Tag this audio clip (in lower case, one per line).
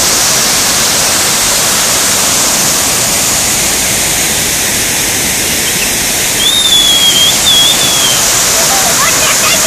speech